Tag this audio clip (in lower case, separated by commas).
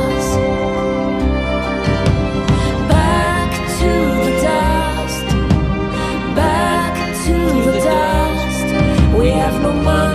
music, sad music